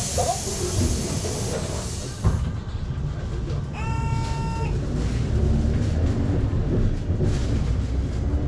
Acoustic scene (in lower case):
bus